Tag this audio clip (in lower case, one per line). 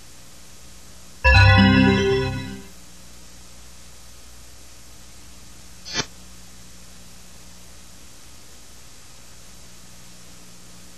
music